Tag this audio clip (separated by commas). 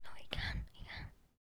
Whispering, Human voice